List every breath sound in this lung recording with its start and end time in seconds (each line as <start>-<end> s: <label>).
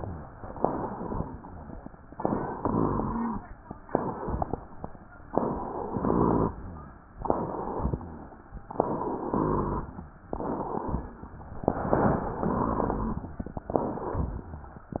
0.00-0.44 s: rhonchi
0.51-0.89 s: inhalation
0.93-1.37 s: exhalation
2.11-2.58 s: inhalation
2.58-3.40 s: exhalation
2.58-3.40 s: rhonchi
3.91-4.27 s: inhalation
4.29-4.69 s: exhalation
5.90-6.53 s: exhalation
5.90-6.53 s: rhonchi
7.21-7.76 s: inhalation
7.82-8.37 s: exhalation
7.82-8.37 s: rhonchi
8.75-9.30 s: inhalation
9.33-9.89 s: exhalation
9.33-9.89 s: rhonchi
10.30-10.85 s: inhalation
10.87-11.23 s: exhalation
10.87-11.23 s: rhonchi
11.63-12.37 s: inhalation
12.39-13.28 s: exhalation
12.39-13.28 s: rhonchi